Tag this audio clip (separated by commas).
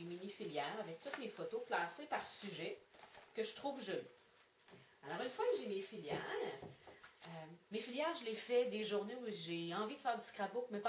Speech